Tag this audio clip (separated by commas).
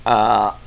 eructation